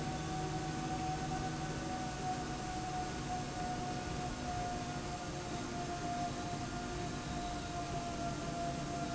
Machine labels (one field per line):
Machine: slide rail